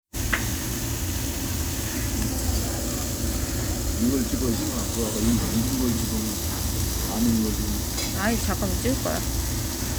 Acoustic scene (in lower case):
restaurant